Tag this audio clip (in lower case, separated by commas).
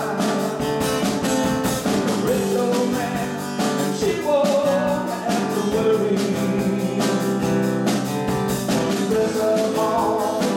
music, singing